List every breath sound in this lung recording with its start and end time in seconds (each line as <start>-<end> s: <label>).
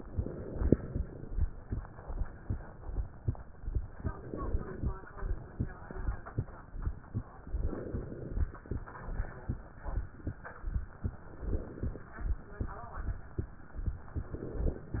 0.00-1.36 s: inhalation
4.06-4.94 s: inhalation
7.50-8.56 s: inhalation
11.00-12.06 s: inhalation
14.08-15.00 s: inhalation